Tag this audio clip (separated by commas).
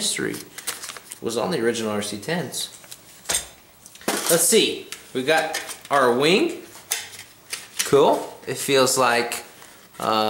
inside a small room, Speech